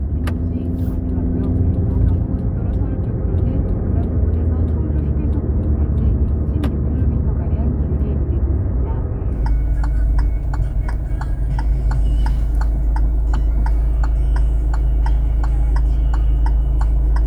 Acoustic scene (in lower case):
car